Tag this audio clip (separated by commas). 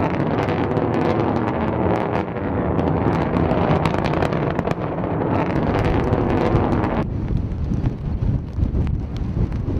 missile launch